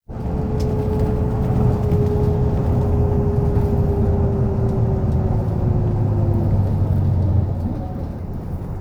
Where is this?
on a bus